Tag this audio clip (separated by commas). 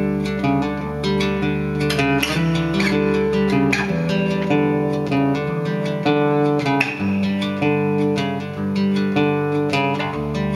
Musical instrument, Plucked string instrument, Music, Acoustic guitar, Guitar